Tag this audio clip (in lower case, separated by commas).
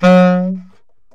woodwind instrument, musical instrument, music